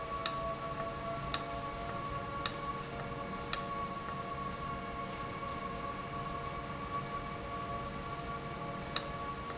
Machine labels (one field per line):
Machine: valve